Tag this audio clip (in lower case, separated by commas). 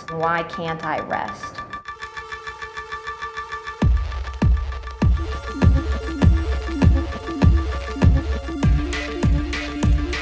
speech, music